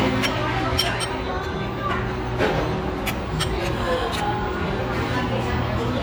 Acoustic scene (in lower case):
restaurant